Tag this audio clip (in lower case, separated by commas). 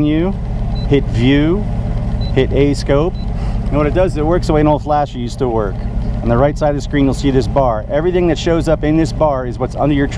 speech